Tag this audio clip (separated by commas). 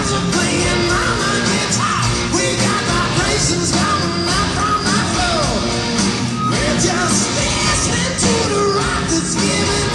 Music, Rock music